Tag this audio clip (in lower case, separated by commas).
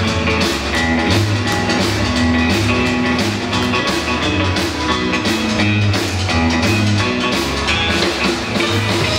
strum, musical instrument, guitar, electric guitar, plucked string instrument, music